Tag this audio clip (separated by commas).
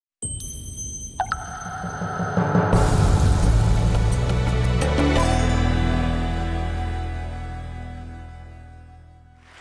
Music